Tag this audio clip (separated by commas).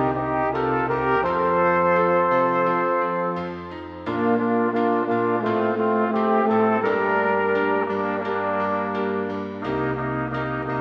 playing trumpet